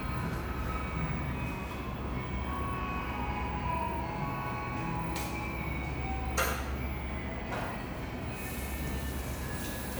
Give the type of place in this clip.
cafe